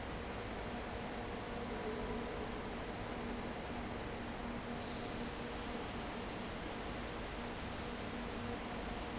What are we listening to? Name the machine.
fan